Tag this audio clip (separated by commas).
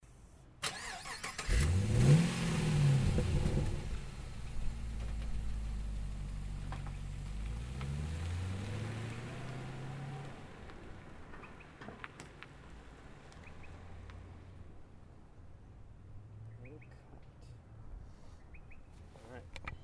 Engine, vroom, Vehicle